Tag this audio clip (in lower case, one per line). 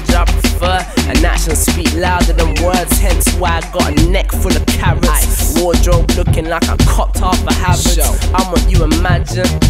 music